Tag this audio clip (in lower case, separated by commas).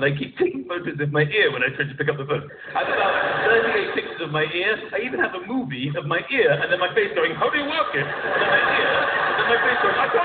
speech